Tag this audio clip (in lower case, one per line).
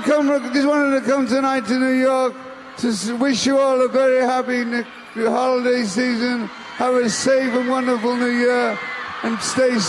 speech